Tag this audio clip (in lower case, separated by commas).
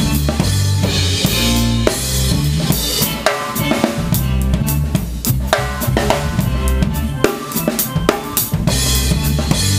drum kit, dance music, musical instrument, drum, playing drum kit, music